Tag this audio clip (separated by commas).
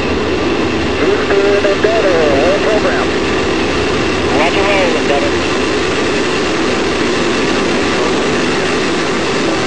Speech